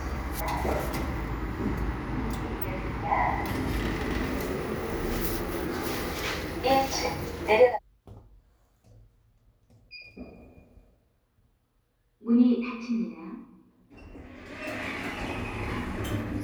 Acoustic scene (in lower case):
elevator